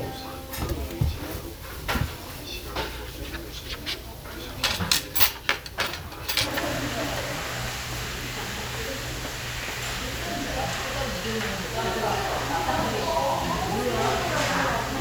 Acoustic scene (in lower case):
restaurant